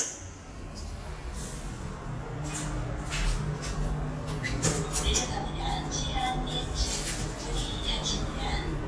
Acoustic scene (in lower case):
elevator